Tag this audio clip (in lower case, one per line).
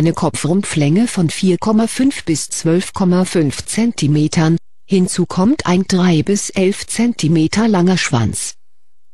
speech